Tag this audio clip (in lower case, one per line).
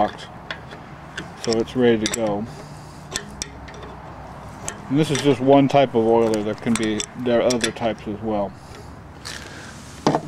speech